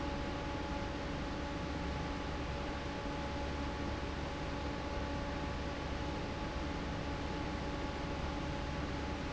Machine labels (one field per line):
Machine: fan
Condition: normal